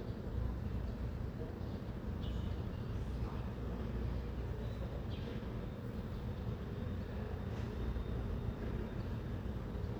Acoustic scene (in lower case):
residential area